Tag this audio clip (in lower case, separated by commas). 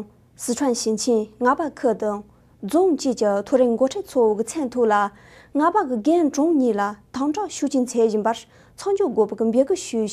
speech